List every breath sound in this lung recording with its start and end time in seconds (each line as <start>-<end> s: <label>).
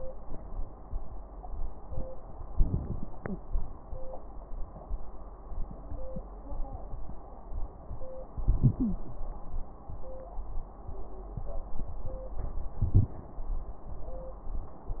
2.52-3.07 s: crackles
2.53-3.07 s: inhalation
3.17-3.38 s: exhalation
8.38-9.03 s: inhalation
8.79-9.03 s: wheeze
12.80-13.15 s: inhalation